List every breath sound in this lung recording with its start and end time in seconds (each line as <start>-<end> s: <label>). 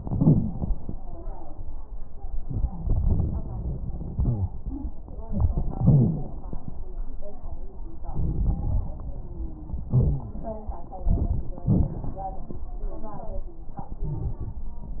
0.00-0.51 s: wheeze
0.00-0.98 s: inhalation
2.37-4.89 s: exhalation
2.66-3.13 s: wheeze
4.11-4.52 s: wheeze
4.62-4.94 s: wheeze
5.30-6.39 s: wheeze
5.30-6.53 s: inhalation
8.19-9.82 s: exhalation
9.09-9.82 s: wheeze
9.93-10.37 s: wheeze
9.93-10.91 s: inhalation
10.99-11.63 s: exhalation
11.56-12.63 s: inhalation
11.56-12.63 s: crackles
12.80-13.29 s: wheeze
12.80-13.56 s: exhalation
13.81-14.62 s: inhalation